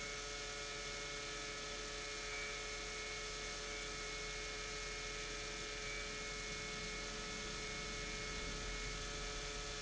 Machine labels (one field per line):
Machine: pump